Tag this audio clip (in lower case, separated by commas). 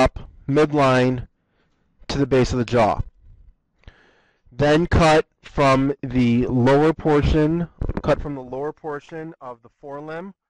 speech